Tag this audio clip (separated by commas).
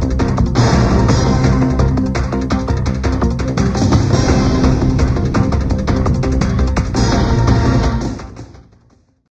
Music